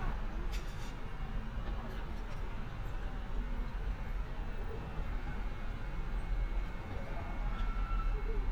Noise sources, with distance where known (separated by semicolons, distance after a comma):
non-machinery impact